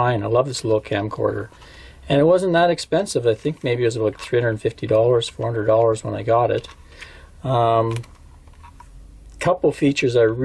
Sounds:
speech, inside a small room

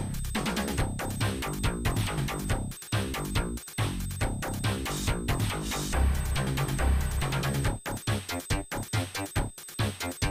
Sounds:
music, dance music

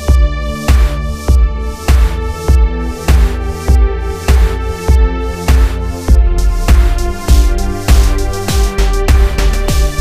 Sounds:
music

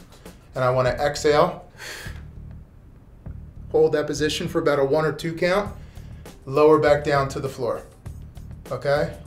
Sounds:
speech, music

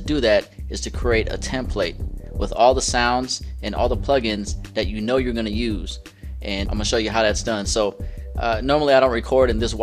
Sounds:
speech

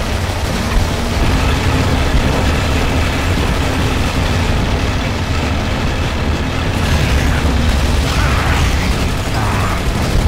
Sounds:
vehicle, music

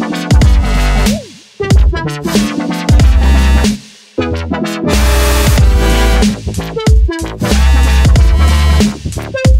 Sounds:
sampler

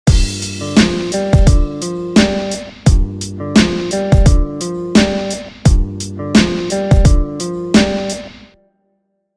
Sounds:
music

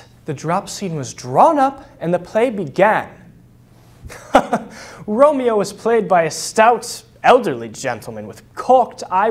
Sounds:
monologue, speech

